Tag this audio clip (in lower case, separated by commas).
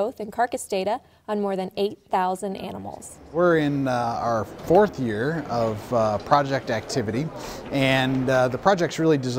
speech